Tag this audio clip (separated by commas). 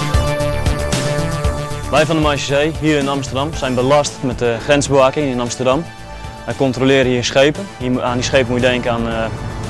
Music, Speech